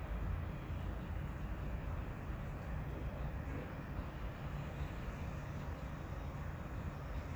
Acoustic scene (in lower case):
residential area